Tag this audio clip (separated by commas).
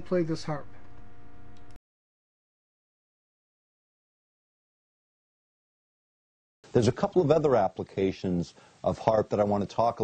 Speech